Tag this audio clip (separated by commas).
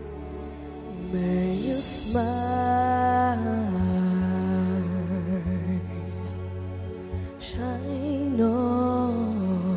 Music